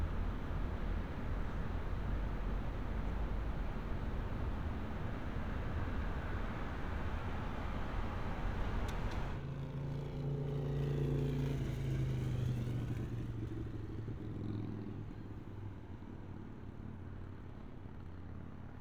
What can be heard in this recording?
medium-sounding engine